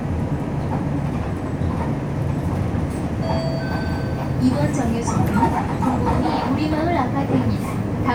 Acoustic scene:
bus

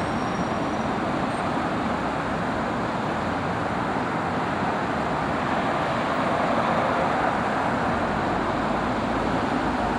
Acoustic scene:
street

